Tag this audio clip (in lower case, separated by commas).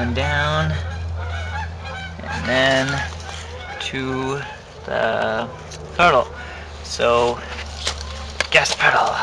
outside, rural or natural, speech